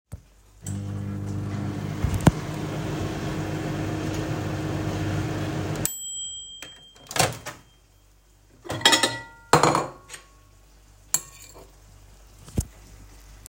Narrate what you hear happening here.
just microwaving some pasta and then eating it